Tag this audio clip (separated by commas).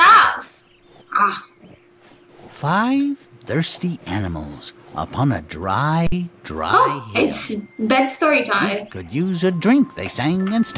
Speech synthesizer